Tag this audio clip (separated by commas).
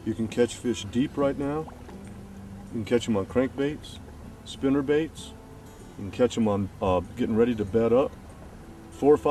Speech, outside, rural or natural, Music